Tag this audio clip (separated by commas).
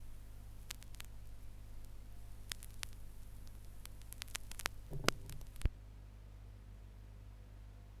Crackle